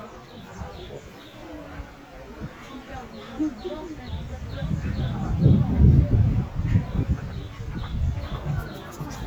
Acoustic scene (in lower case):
park